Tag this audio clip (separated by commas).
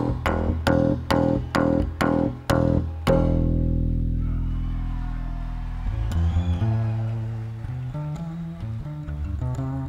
playing double bass